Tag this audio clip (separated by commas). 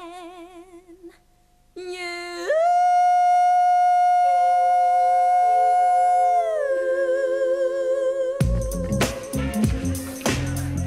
Singing